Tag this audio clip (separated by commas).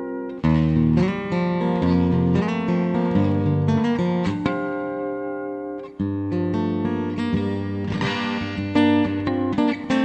Music